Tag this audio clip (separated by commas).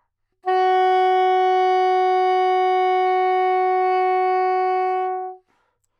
Music, Wind instrument, Musical instrument